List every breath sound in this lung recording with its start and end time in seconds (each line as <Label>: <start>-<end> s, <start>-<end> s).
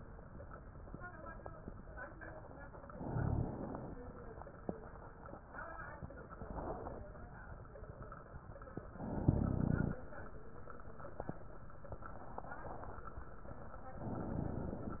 Inhalation: 2.81-3.88 s, 8.89-9.96 s, 13.95-15.00 s